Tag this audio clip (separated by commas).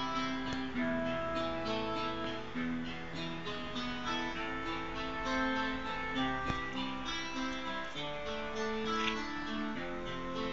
Music